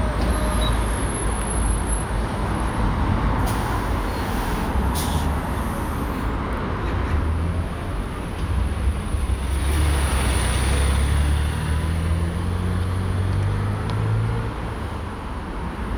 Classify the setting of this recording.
street